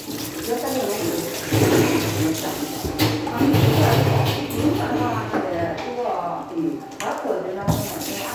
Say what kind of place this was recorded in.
restroom